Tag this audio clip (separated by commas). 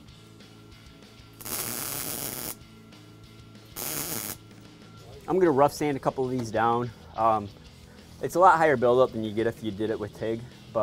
Speech